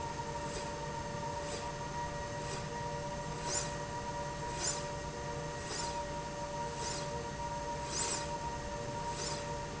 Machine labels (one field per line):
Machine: slide rail